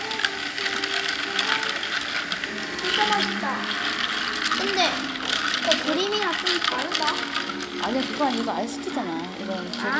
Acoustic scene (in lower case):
cafe